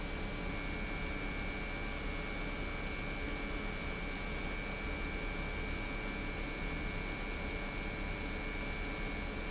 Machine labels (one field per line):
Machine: pump